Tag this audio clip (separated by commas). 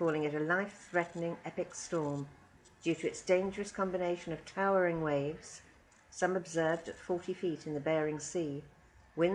Speech